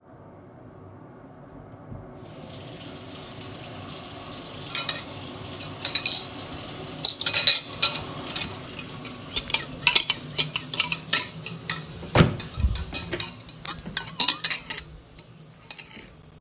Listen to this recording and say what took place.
open the waterflow, take cultury and go with it to other room, open door(when I was opening the door, waterflow and dishes made sounds)